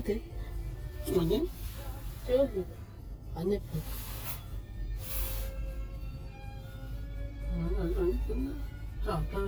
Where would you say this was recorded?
in a car